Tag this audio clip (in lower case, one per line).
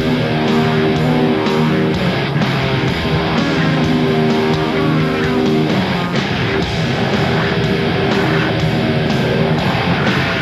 music